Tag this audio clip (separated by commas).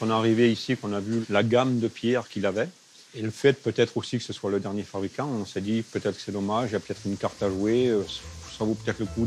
sharpen knife